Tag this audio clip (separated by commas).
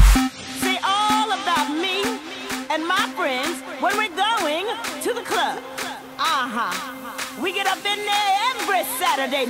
Dance music, Speech, Music